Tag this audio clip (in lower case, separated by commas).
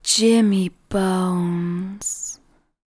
female speech, human voice, speech